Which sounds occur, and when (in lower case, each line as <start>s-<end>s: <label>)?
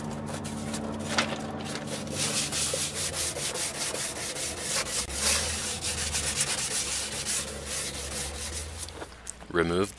0.0s-9.9s: mechanisms
1.6s-9.2s: sanding
6.7s-6.8s: tap
8.8s-8.9s: tick
9.2s-9.3s: generic impact sounds
9.5s-9.9s: man speaking